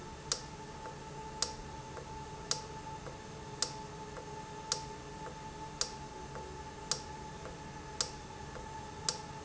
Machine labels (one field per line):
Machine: valve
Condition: normal